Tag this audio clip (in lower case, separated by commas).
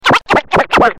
musical instrument, scratching (performance technique), music